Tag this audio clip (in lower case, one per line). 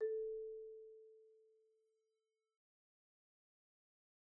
musical instrument
marimba
percussion
mallet percussion
music